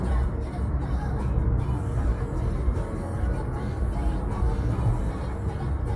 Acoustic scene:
car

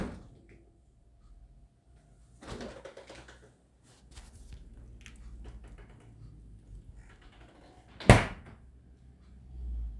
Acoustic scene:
kitchen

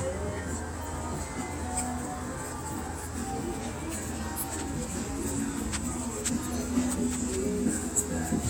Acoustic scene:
street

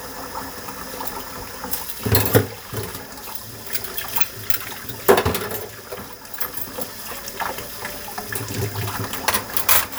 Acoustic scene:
kitchen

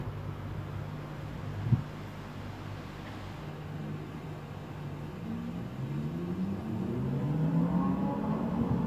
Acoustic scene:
residential area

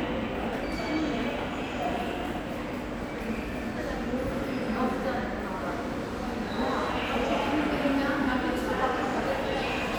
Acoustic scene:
subway station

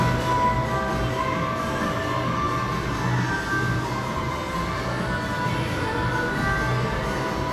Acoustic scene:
cafe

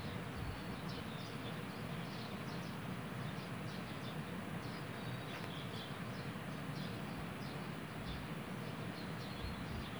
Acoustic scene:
park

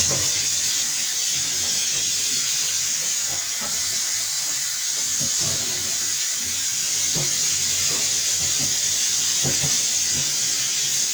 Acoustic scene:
kitchen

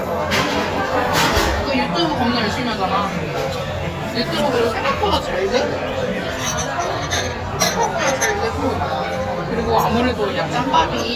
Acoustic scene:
crowded indoor space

